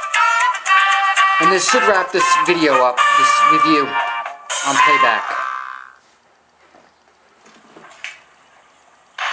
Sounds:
television, speech, music

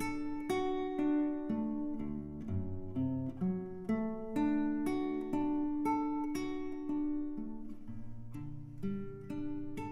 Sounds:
musical instrument, guitar, acoustic guitar, plucked string instrument, strum, music

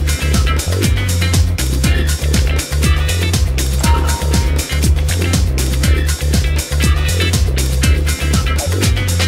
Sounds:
music

